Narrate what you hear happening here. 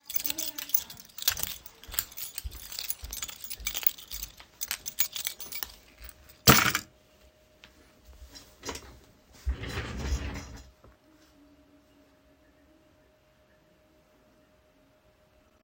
I walked through the hallway while holding my keys. The keychain made noise while I moved.